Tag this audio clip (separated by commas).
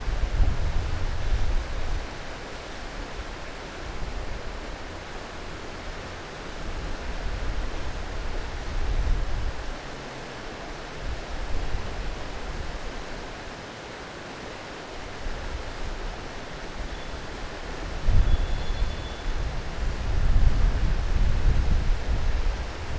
Stream, Water